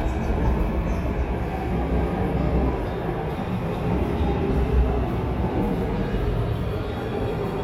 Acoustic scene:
subway station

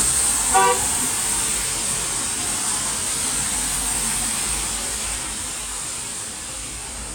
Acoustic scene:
street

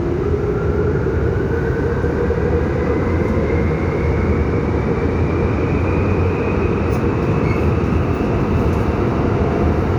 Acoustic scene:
subway train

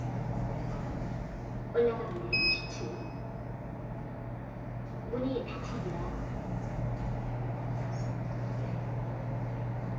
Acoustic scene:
elevator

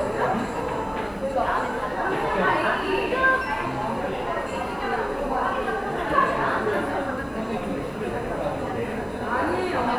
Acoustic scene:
cafe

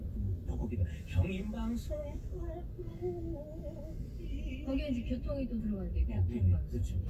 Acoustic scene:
car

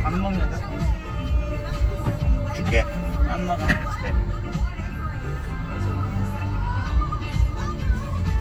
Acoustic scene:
car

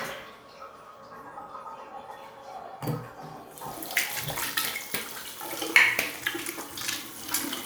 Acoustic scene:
restroom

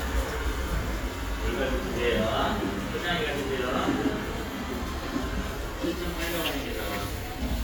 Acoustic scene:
cafe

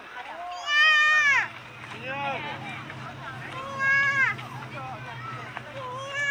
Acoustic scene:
park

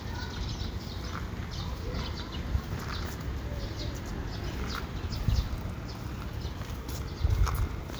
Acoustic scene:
park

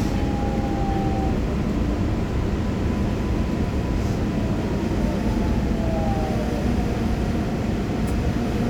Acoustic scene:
subway train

